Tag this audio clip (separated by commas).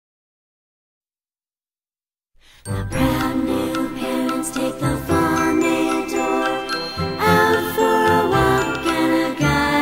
Music, Christmas music